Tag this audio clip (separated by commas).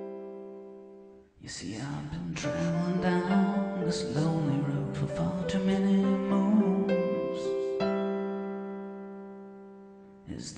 Music